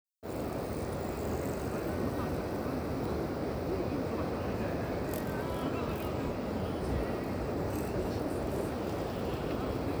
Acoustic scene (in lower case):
park